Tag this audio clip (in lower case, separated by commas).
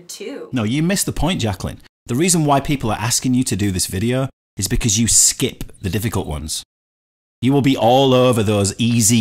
speech